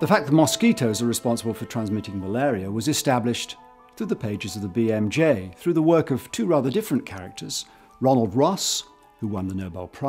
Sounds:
Music, Speech

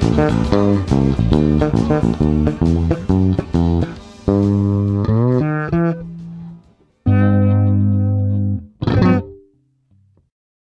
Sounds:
Guitar, Reverberation, Music, Plucked string instrument, inside a small room, Musical instrument, Bass guitar

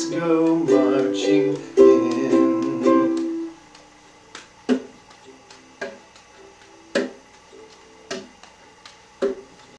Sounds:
Singing, Ukulele, Music, inside a small room

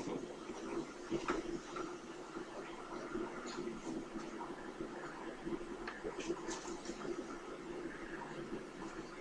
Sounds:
Speech

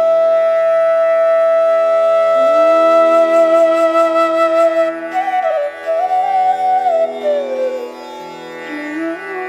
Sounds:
playing flute

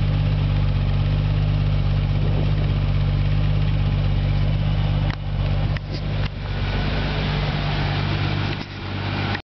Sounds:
Idling

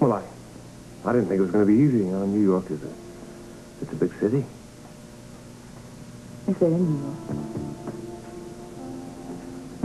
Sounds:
Speech, Music

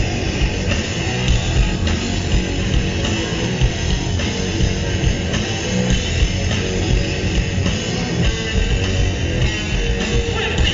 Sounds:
Music

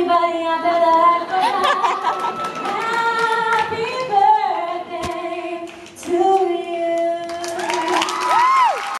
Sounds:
Female singing

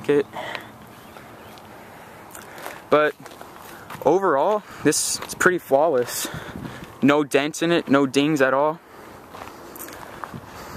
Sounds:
Speech

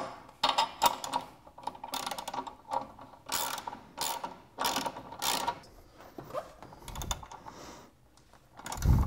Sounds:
Mechanisms, Gears

